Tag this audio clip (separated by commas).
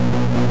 Musical instrument, Guitar, Music, Plucked string instrument